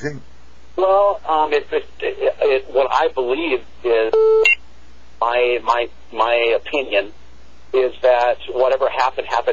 A man having a conversation over the telephone